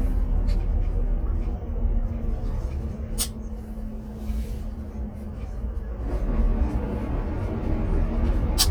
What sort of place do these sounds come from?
car